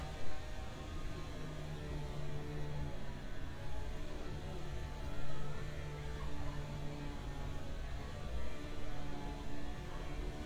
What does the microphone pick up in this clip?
unidentified powered saw